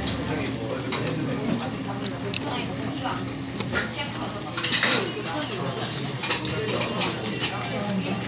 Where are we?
in a crowded indoor space